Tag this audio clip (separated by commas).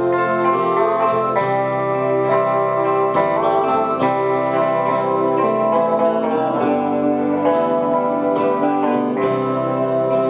Musical instrument, Music, String section